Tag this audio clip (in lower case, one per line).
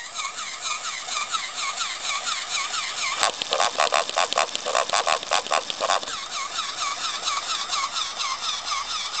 pig oinking